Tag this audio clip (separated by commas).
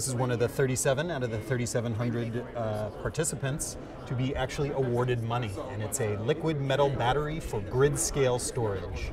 Speech